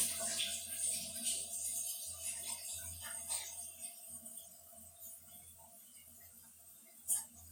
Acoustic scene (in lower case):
restroom